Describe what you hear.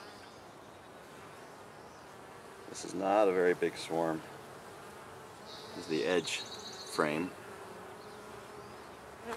Buzzing of nearby insects with a man speaking and distant birds chirping